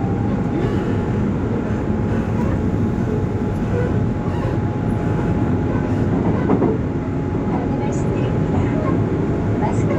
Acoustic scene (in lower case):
subway train